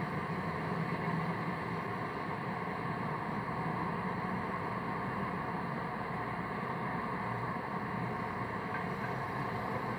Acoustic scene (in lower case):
street